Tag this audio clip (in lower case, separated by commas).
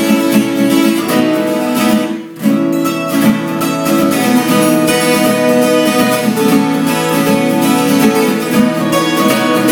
musical instrument, guitar, music, acoustic guitar, plucked string instrument, strum